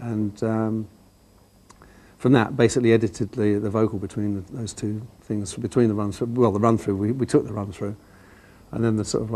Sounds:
speech

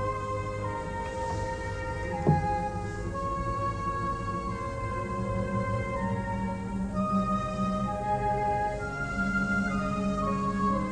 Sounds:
music

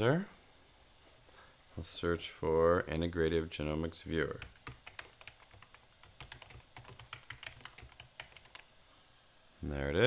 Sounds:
computer keyboard

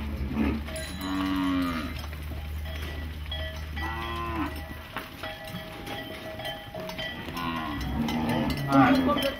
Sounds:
bovinae cowbell

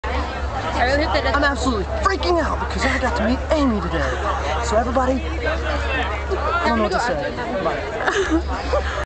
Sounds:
speech

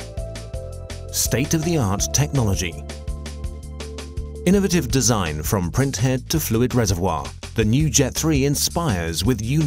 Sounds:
speech
music

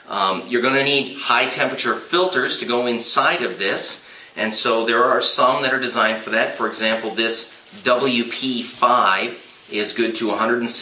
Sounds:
speech

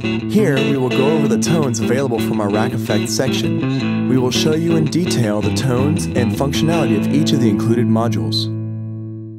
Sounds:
speech
guitar
music

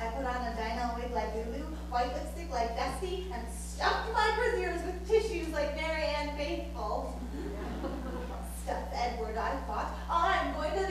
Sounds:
speech

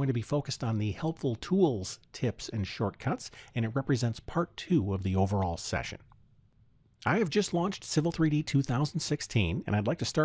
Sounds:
speech

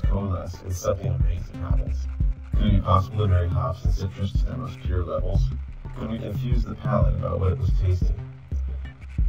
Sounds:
speech
music

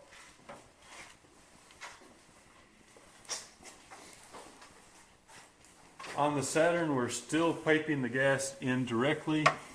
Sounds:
speech

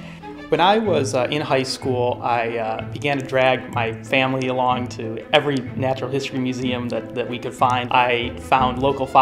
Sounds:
speech

